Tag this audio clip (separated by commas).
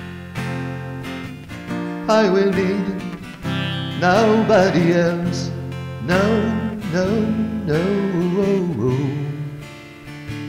Music